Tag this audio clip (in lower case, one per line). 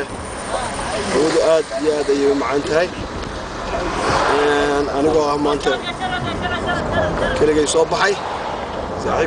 speech